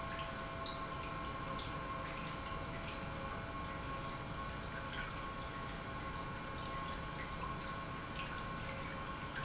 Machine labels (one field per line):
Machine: pump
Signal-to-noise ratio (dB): 0 dB